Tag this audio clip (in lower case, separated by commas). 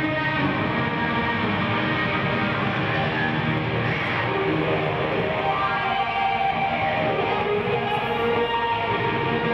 musical instrument, acoustic guitar, plucked string instrument, bass guitar, music